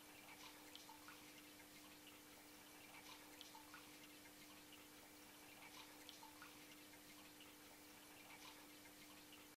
Sound of very faint water dripping in an outside like environment